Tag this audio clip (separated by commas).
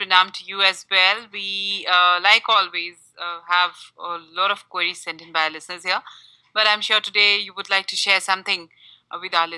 Speech